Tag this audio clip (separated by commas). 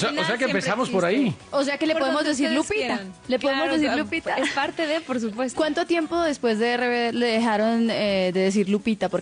Radio, Speech